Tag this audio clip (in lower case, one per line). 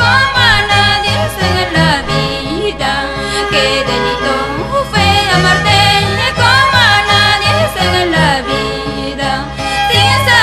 music